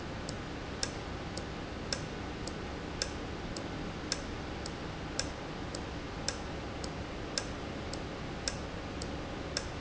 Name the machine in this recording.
valve